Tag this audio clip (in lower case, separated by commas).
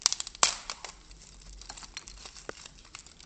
wood